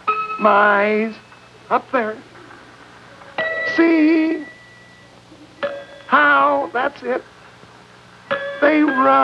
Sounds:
Music, Speech

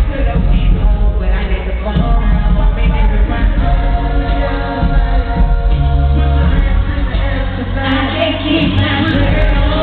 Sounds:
Music

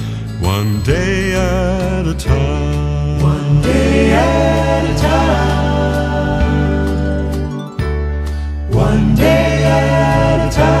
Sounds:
Happy music, Music

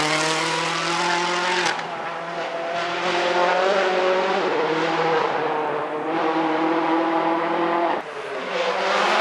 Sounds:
Car passing by

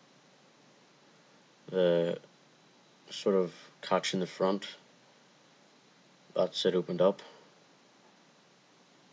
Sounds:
Speech

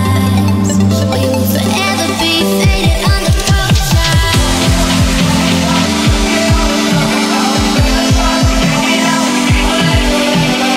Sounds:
Dubstep, Music, Electronic music

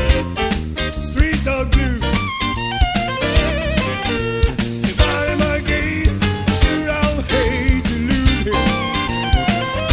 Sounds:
Music, Blues

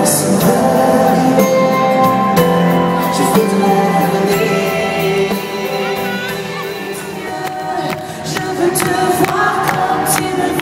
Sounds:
Music, Speech

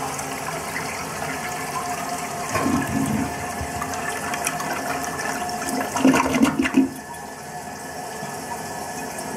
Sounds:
toilet flushing, Toilet flush

